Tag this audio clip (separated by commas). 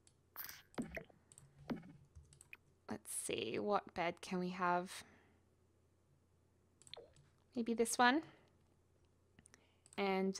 Speech